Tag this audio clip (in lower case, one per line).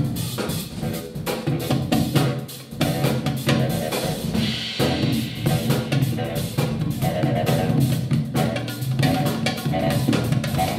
percussion
music